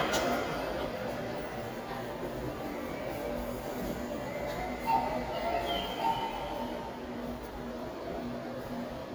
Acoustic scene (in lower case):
subway station